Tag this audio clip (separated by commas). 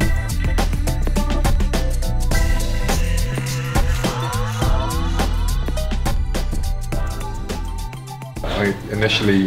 Speech, Music